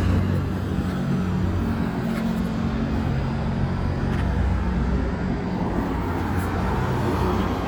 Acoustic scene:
street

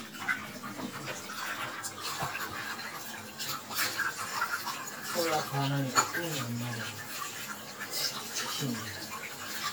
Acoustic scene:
kitchen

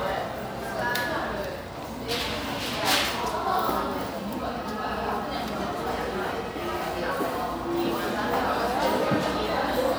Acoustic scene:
cafe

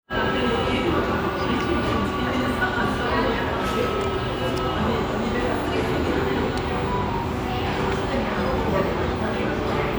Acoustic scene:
restaurant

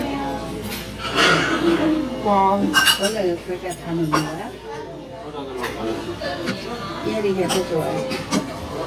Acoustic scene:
restaurant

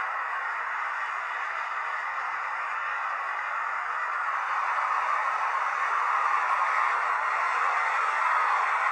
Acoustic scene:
street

